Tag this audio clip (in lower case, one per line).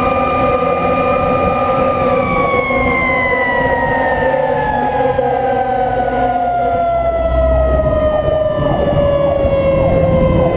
vehicle